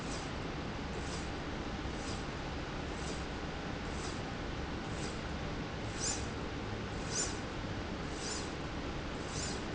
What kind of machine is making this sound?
slide rail